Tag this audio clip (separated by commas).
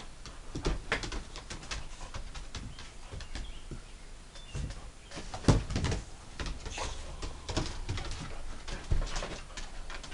Dog, Animal